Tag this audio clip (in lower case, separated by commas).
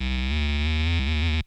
music, musical instrument